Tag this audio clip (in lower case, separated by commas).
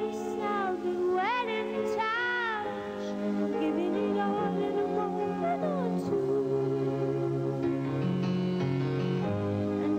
music